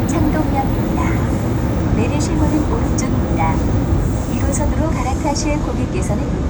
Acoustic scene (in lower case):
subway train